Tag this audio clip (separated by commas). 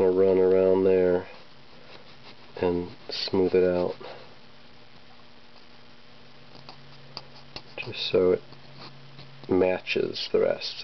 Speech